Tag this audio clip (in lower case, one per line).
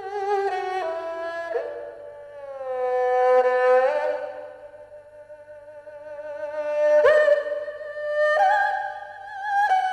music